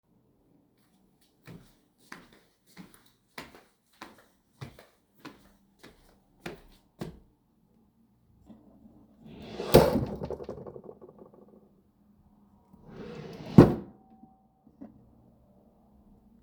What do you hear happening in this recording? I walked towards the wardrobe and opened and then clossed the drawer